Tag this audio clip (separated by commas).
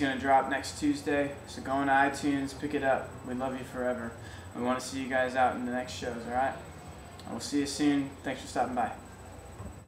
Speech